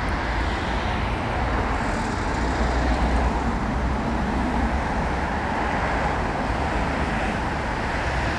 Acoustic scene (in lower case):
street